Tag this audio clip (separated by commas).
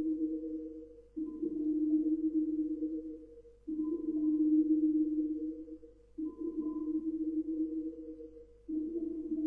Music